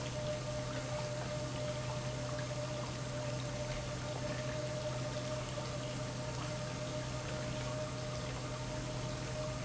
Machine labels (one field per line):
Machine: pump